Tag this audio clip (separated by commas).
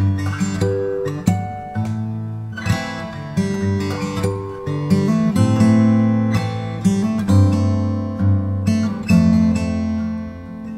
Musical instrument, Music, Strum, Guitar, Plucked string instrument